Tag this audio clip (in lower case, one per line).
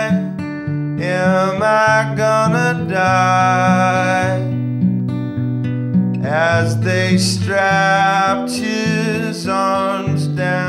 singing
music